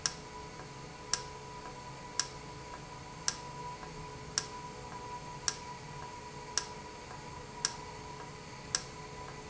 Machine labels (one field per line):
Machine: valve